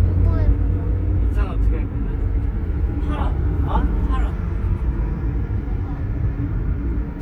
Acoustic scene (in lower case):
car